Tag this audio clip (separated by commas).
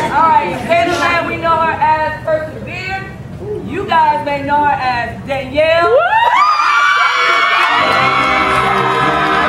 inside a large room or hall, Speech, Music